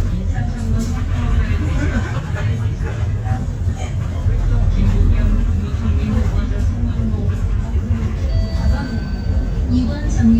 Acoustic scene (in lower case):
bus